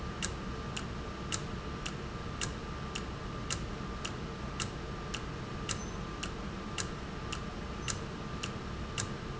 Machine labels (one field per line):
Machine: valve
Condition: normal